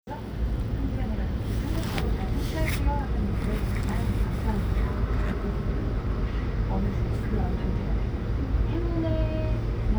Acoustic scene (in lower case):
bus